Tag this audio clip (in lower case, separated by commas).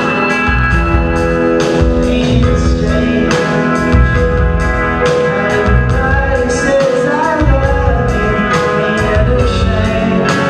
pop music, music